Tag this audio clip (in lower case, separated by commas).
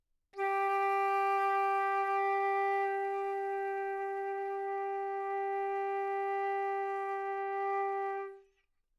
musical instrument, music, wind instrument